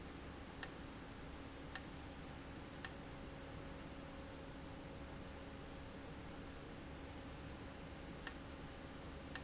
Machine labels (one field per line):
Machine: valve